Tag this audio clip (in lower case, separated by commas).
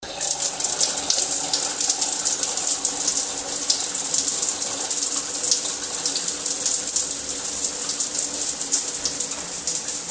bathtub (filling or washing), domestic sounds